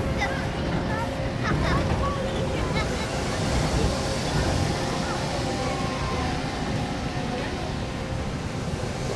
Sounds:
speech

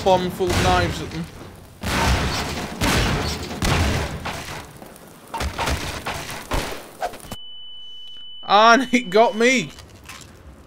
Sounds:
fusillade

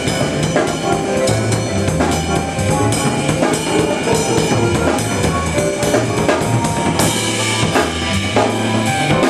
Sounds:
musical instrument, music, drum, jazz, drum kit

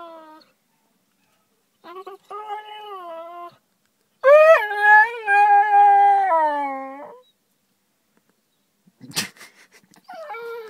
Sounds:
domestic animals

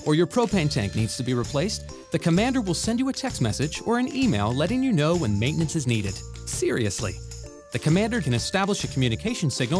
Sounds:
music, speech

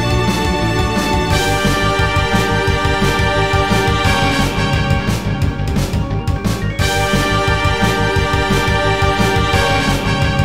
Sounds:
music

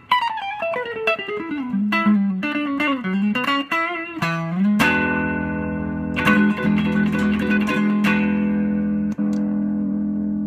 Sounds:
tapping (guitar technique), music, guitar, plucked string instrument, musical instrument, inside a small room

